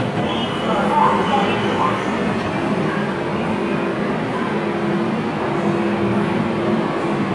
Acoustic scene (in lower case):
subway train